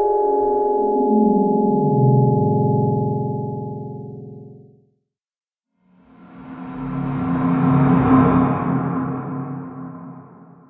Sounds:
Music

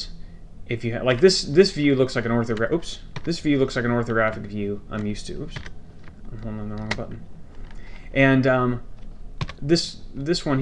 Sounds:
Typing, Speech

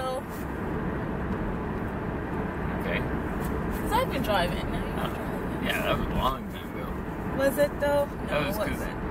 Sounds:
Speech, Car, Vehicle

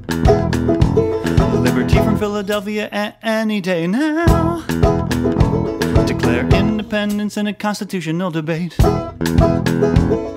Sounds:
Happy music, Music

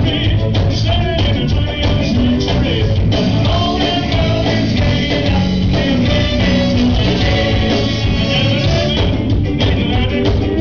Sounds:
Music

